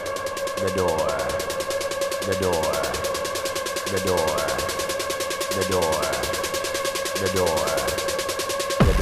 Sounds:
Music, Speech

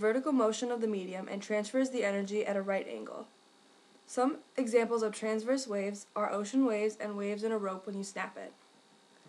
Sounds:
Speech

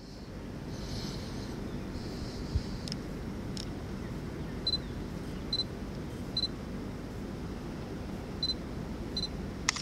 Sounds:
Single-lens reflex camera

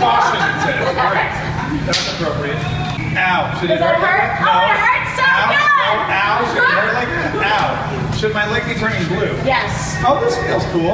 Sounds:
Speech

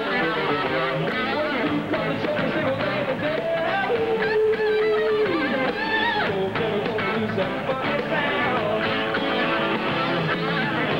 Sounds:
Electric guitar, Music, Musical instrument, Plucked string instrument

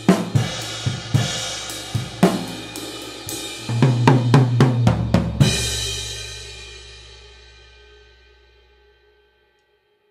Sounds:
playing cymbal

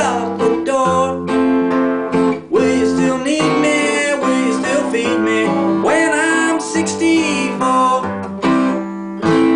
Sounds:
Plucked string instrument, Musical instrument, Guitar, Acoustic guitar, Music, Strum

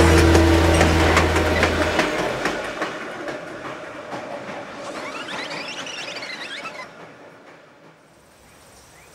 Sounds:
outside, rural or natural

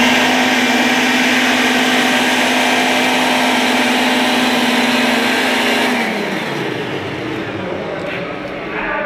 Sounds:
Speech

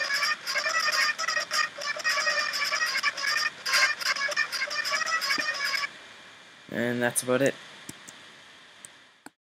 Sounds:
Speech

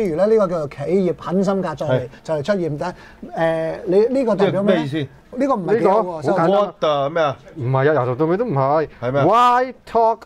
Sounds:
Speech

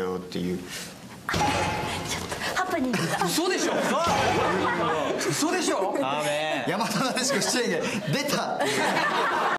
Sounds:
Speech

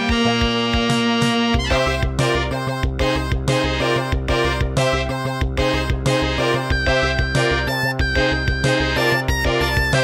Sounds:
Music

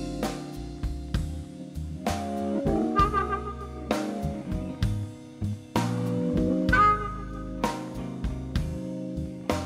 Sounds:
Electric guitar, Music, Tapping (guitar technique)

